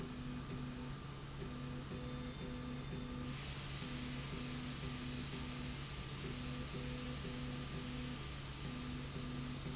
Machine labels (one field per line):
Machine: slide rail